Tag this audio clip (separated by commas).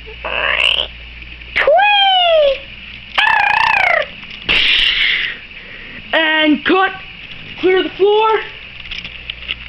Speech